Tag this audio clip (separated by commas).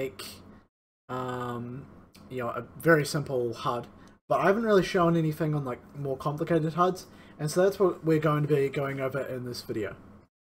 Speech